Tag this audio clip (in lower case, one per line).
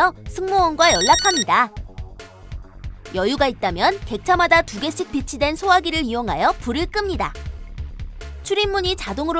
music
speech